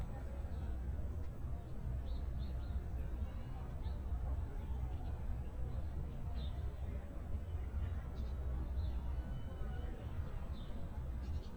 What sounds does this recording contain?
person or small group talking